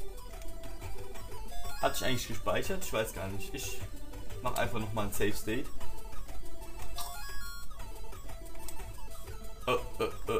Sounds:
Speech, Music

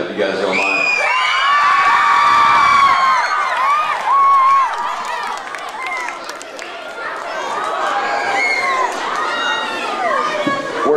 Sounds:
Speech

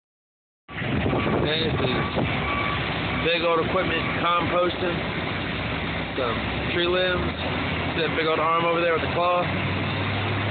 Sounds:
Vehicle, Speech

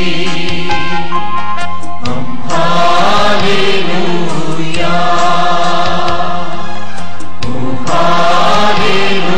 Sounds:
inside a large room or hall, Music

